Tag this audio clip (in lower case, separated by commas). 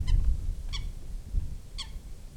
animal, wild animals, bird